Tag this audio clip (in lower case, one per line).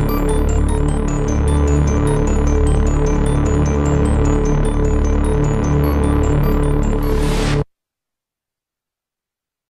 music